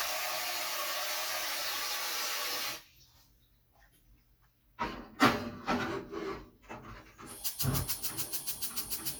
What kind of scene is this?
kitchen